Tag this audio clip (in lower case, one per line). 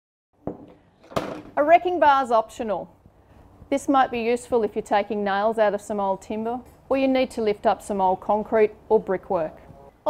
speech